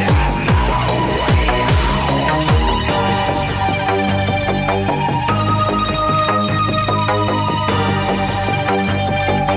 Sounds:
video game music
music

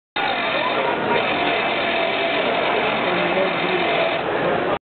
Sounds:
speech

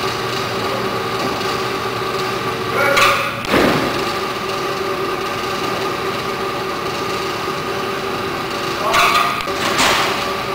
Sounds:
speech

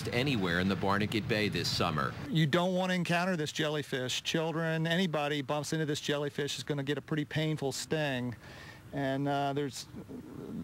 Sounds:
speech

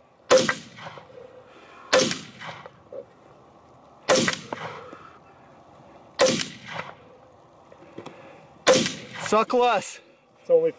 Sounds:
outside, rural or natural
speech

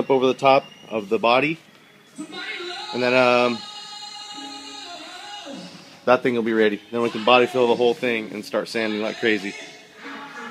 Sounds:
music
speech

